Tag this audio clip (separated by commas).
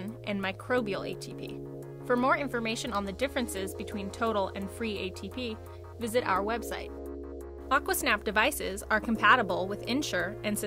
Music, Speech